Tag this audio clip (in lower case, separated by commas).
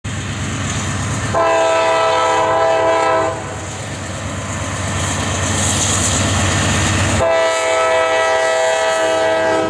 train horn, train, train wagon, rail transport, clickety-clack